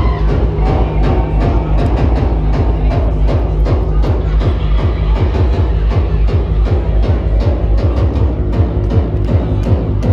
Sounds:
Timpani, Music

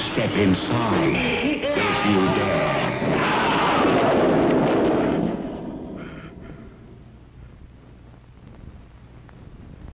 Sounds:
Speech

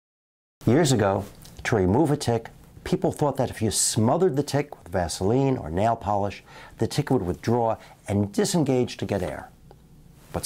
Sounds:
Speech

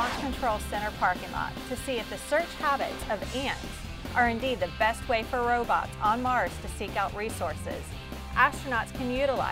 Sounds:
Speech, Music

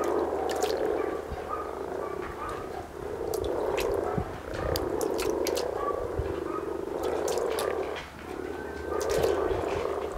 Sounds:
frog croaking

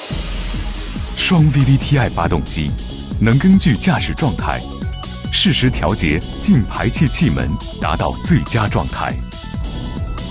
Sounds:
Speech, Music

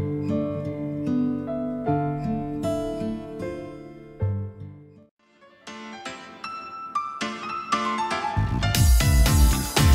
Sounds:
Music, Harp

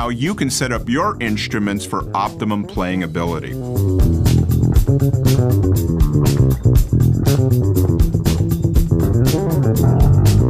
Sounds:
Acoustic guitar, Musical instrument, Music, Speech

